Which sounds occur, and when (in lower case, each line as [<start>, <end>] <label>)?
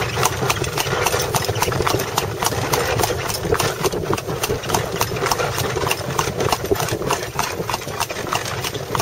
[0.00, 9.01] clip-clop
[0.00, 9.01] vehicle
[0.00, 9.01] wind